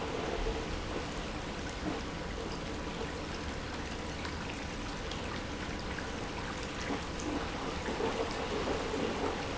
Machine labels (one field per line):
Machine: pump